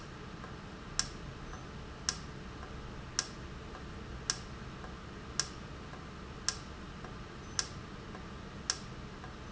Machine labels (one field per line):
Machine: valve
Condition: normal